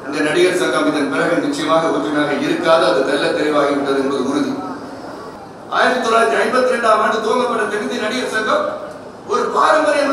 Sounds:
Male speech, monologue, Speech

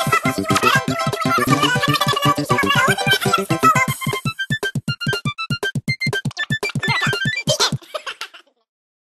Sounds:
Music

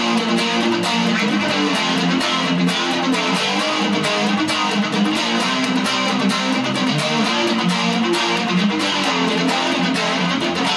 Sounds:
Plucked string instrument, Electric guitar, Guitar, Music, Musical instrument

